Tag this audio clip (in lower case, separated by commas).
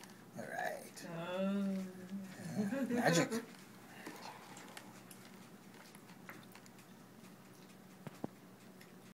speech